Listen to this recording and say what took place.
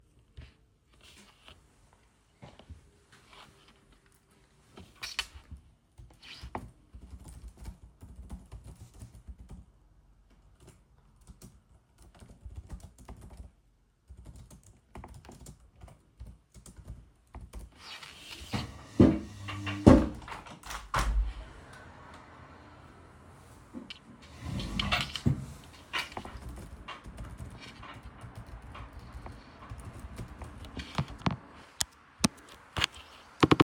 I worked on my laptop. I opened the office window.